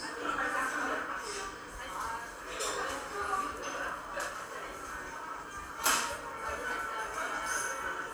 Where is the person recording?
in a cafe